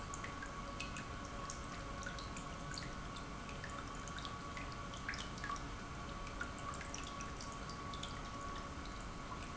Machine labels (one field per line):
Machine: pump